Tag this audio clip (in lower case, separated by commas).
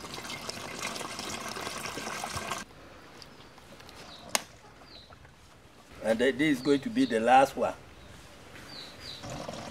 water